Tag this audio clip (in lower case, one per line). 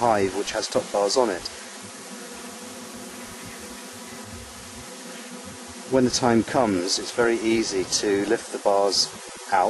bee or wasp
fly
insect